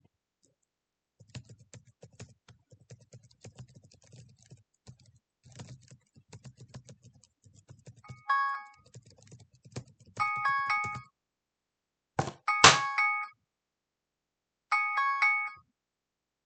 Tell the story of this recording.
I am typing on my keyboard as the cellphone starts ringing. The ringing doesn't stop and a box of teabags is falling to the ground.